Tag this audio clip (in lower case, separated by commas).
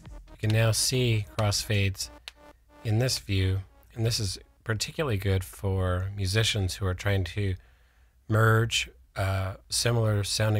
speech, music